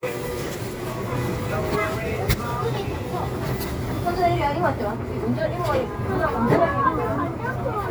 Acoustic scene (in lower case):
crowded indoor space